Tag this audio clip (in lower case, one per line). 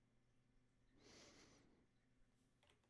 respiratory sounds